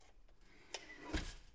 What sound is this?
window opening